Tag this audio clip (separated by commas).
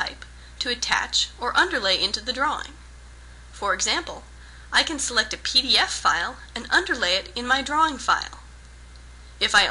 Speech